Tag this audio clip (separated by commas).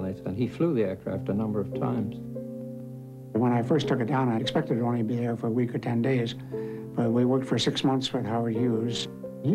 Speech, Music